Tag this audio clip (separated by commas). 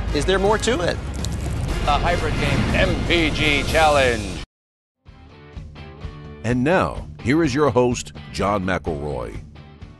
Music, Speech